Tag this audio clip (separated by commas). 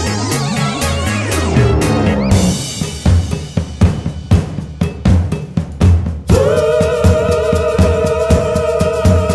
Rimshot, Bass drum, Drum, Percussion, Drum kit, Snare drum